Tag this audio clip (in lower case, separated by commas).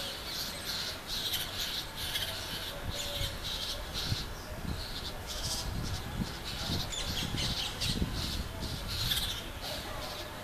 bird, coo, animal